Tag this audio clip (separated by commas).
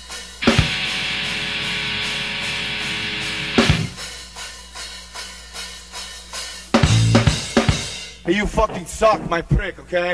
Drum kit, Speech, Music